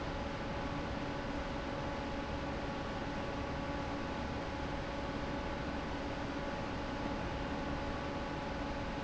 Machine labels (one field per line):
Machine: fan